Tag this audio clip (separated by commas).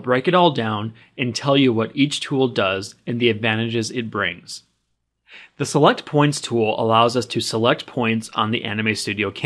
Speech